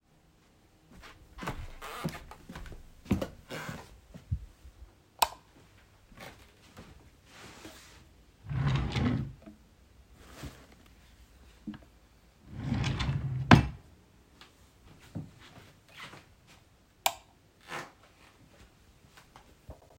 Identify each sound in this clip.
footsteps, light switch, wardrobe or drawer